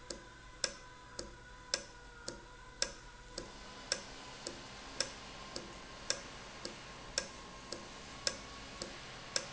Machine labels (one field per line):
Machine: valve